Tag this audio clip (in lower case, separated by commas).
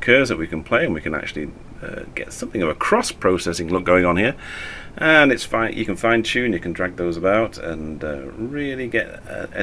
speech